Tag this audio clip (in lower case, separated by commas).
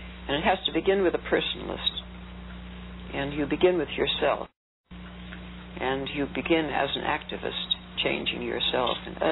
speech